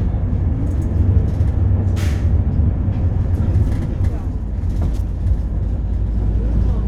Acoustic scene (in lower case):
bus